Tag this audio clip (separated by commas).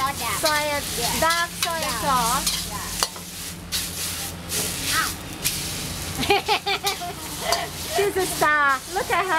Stir, Frying (food), Sizzle